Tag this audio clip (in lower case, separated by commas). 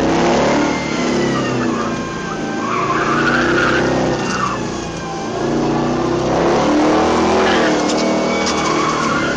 vehicle, car